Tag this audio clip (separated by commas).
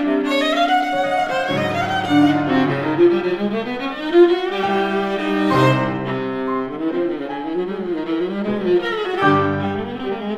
Music, Classical music, Musical instrument, Piano, Bowed string instrument, Violin